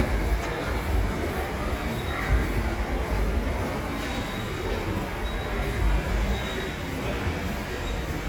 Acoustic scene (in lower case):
subway station